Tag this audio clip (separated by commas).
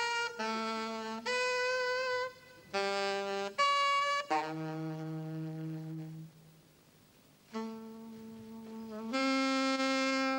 Music, Orchestra, woodwind instrument, Saxophone